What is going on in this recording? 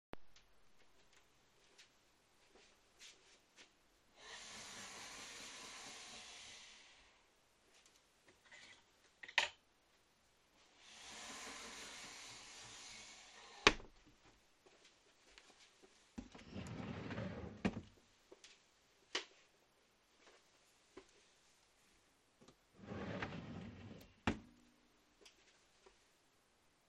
I walked to the wardrobe in my bedroom, opened the sliding door and hung a coat hook on the bar. Then I closed it again. Then I walked to the chest of drawers next to the wardrobe and opened the middle drawer. I took some socks from the bed behind me and put them in the drawer. Then I closed it again and stepped away.